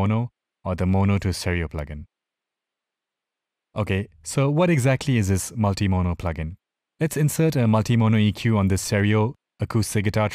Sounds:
speech

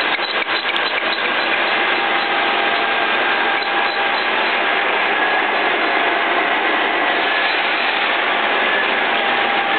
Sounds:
tools

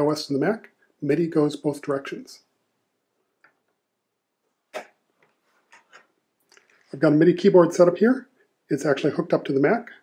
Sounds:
speech

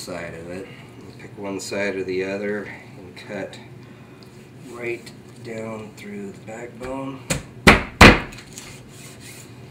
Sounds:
speech

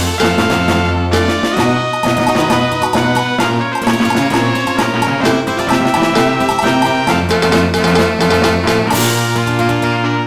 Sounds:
music

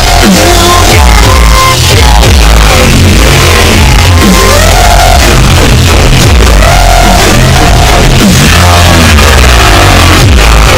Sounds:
dubstep
music

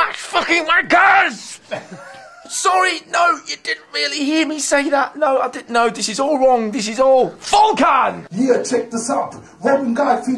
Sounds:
speech

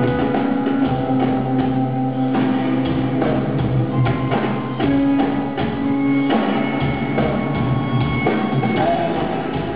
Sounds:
music

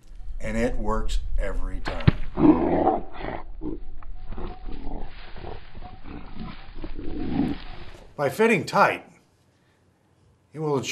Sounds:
roar
speech

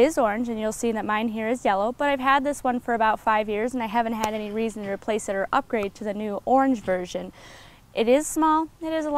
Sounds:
speech

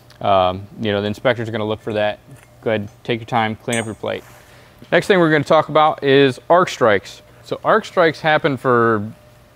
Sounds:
arc welding

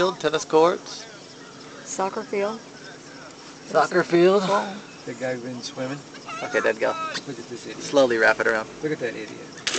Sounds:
speech

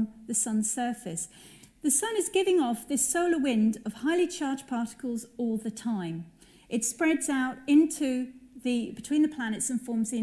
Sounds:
speech

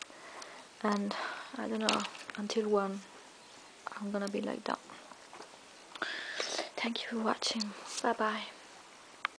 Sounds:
speech

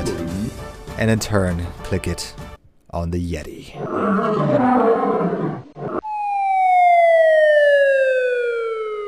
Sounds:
speech
outside, rural or natural
music

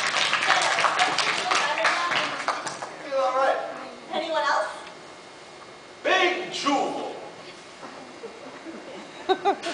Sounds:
speech

